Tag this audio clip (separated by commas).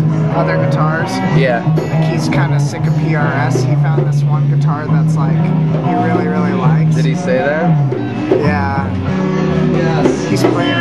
Strum, Music, Guitar, Musical instrument, Speech, Plucked string instrument